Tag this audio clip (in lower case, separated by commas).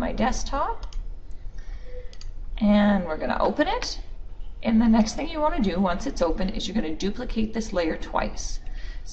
speech